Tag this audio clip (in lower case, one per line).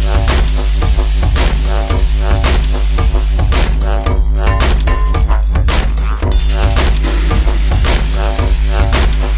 music